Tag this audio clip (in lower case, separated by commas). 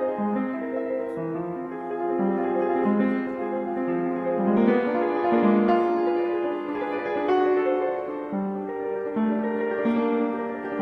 music, piano